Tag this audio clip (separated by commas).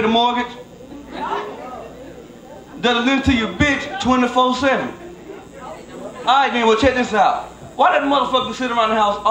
Speech